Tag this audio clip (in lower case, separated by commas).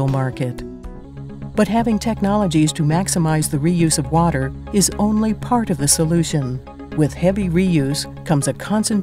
speech, music